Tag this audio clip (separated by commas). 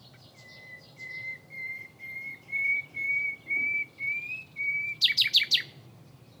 Wild animals, Animal, Bird